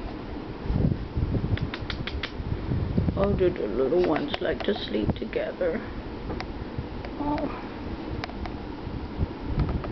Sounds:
Speech

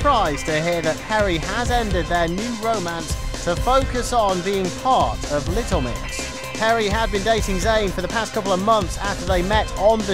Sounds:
Speech, Music

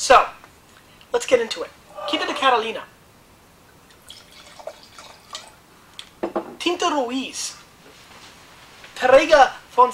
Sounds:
Speech, inside a small room

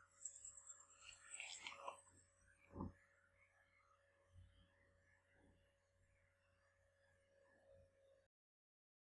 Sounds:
Silence

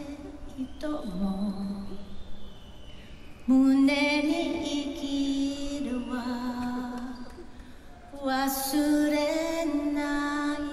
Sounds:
Female singing

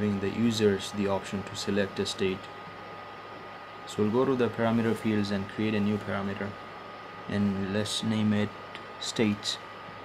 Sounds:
Speech

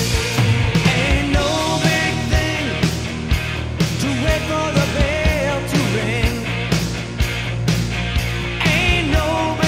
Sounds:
Heavy metal, Rock and roll, Music

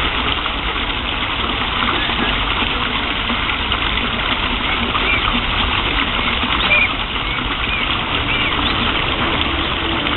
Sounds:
Bird, Goose

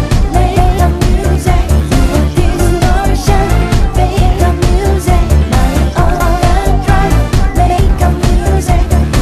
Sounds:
Music

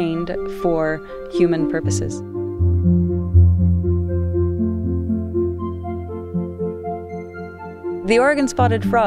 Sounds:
Speech, Music

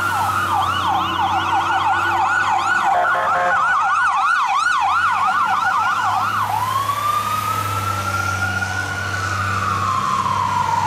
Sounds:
Fire engine

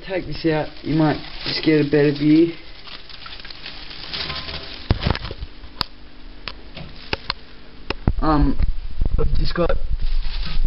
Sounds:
Speech

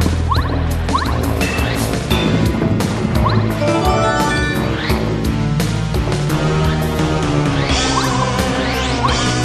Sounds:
Music

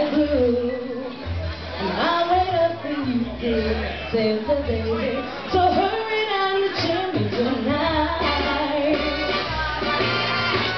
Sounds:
Female singing, Speech, Music

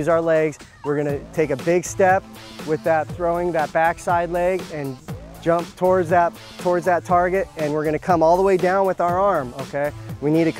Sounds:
Music, Speech

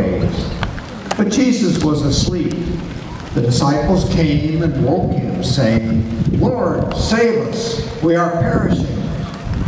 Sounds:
Speech, Male speech

